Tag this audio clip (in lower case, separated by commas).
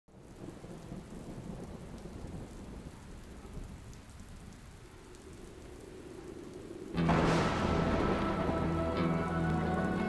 rain on surface, thunder, thunderstorm, rain